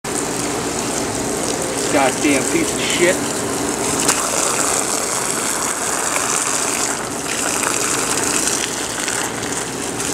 Water is splashing down and a man speaks briefly